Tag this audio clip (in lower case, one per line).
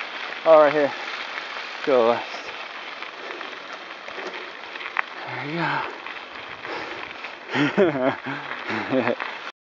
speech